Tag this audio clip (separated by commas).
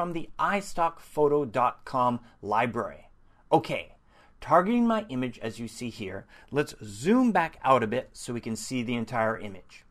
Speech